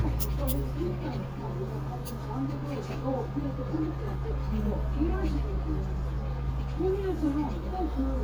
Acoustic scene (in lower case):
crowded indoor space